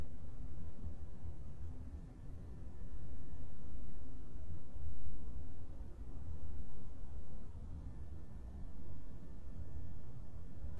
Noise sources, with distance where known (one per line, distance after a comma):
background noise